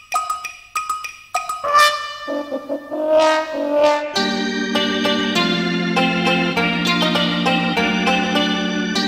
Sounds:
soundtrack music
music

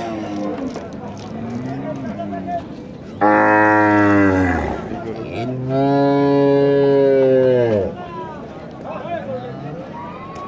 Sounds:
cow lowing

